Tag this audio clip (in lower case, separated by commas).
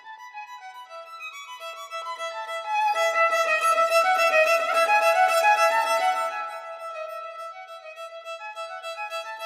music, musical instrument, fiddle